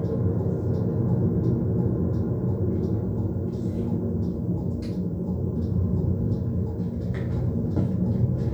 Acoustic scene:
car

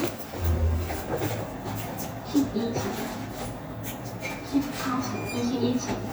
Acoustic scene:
elevator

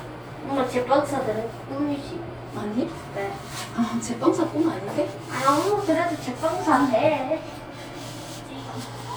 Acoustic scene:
elevator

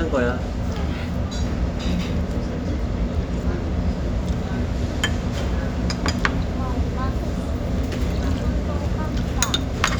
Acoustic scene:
restaurant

